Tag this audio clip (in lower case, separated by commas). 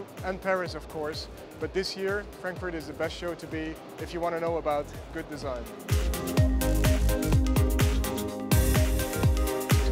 music, speech